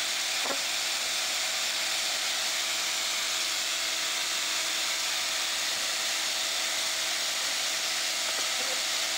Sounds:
housefly, bee or wasp, insect

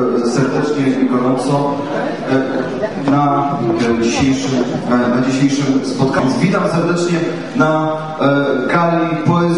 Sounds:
speech

